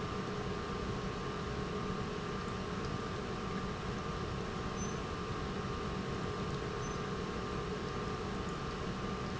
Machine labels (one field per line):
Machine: pump